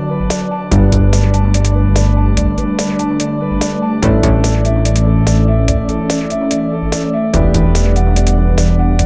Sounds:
electronica

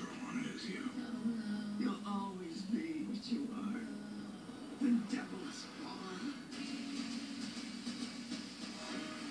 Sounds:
speech
music

